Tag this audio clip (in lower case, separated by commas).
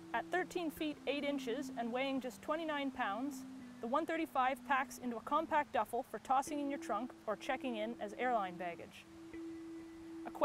music, speech